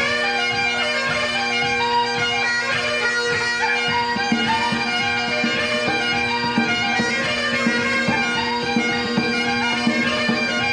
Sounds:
bagpipes, music, musical instrument, playing bagpipes

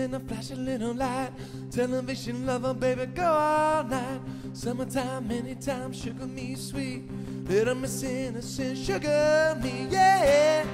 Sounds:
music

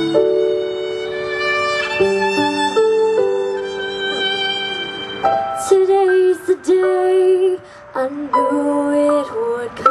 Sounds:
female singing, music

